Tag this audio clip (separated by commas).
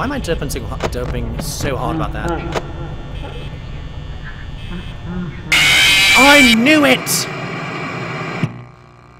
Speech